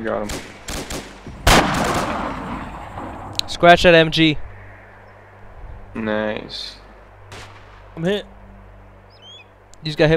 A gun is being fired and person speaks